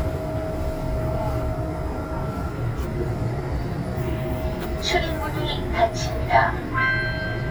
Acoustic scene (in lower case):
subway train